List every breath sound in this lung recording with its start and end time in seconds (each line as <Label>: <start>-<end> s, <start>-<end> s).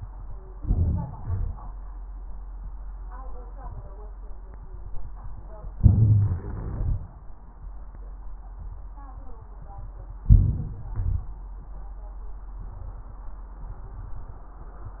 Inhalation: 0.53-1.18 s, 5.73-6.77 s
Exhalation: 1.18-1.59 s, 6.77-7.17 s, 10.95-11.43 s
Crackles: 5.71-6.77 s